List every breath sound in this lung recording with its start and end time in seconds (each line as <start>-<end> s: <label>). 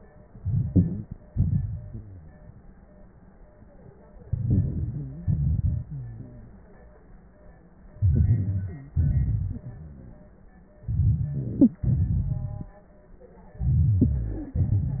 0.30-1.20 s: inhalation
1.33-2.39 s: exhalation
1.92-2.41 s: wheeze
4.29-5.28 s: inhalation
4.96-5.29 s: wheeze
5.27-6.73 s: exhalation
5.88-6.68 s: wheeze
7.97-8.98 s: inhalation
8.72-8.94 s: wheeze
8.99-10.37 s: exhalation
10.81-11.85 s: inhalation
11.61-11.71 s: wheeze
11.87-12.81 s: exhalation
13.60-14.54 s: inhalation
14.37-14.56 s: wheeze